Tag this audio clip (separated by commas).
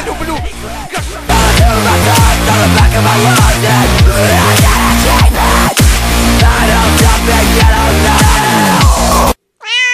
Domestic animals, Cat, Music, Meow, Animal